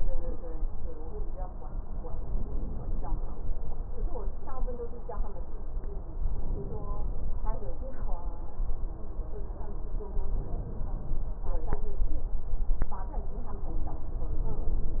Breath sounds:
2.21-3.21 s: inhalation
6.31-7.31 s: inhalation
10.23-11.31 s: inhalation
14.48-15.00 s: inhalation

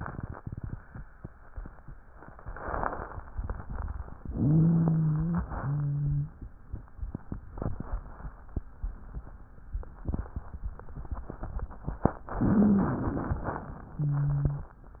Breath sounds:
4.21-5.42 s: inhalation
4.21-5.42 s: wheeze
5.48-6.39 s: wheeze
12.32-13.29 s: wheeze
12.32-13.69 s: inhalation
13.95-14.80 s: wheeze

